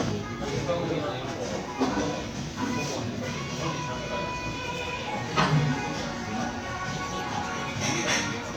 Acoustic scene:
crowded indoor space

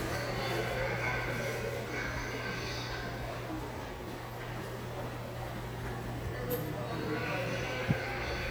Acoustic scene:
subway station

